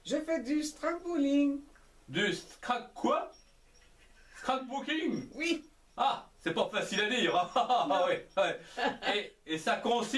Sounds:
Speech

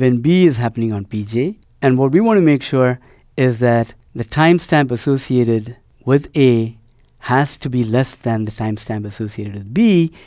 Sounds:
Speech

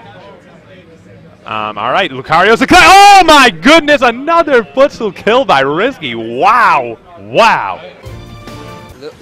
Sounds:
Speech

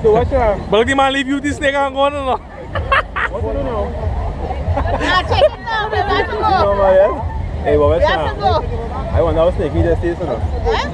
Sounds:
outside, rural or natural, Speech

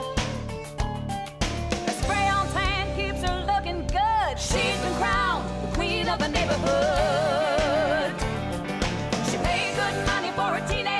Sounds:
Music

